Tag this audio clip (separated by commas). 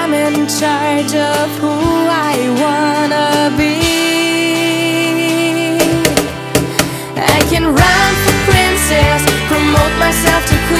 Music